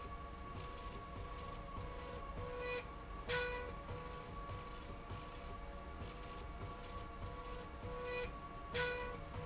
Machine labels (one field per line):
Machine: slide rail